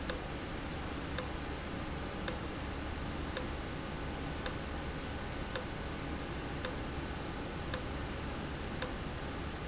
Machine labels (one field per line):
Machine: valve